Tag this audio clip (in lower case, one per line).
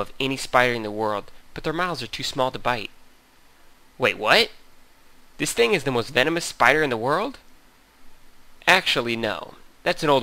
speech